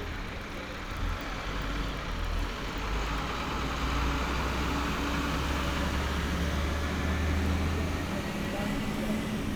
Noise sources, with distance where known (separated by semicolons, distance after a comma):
large-sounding engine, near